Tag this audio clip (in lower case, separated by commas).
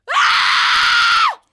human voice, screaming